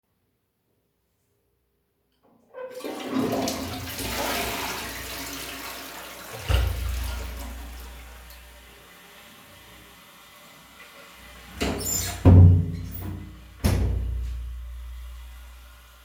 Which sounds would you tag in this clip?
toilet flushing, door